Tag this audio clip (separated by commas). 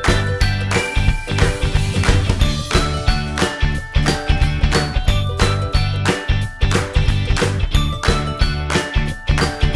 Music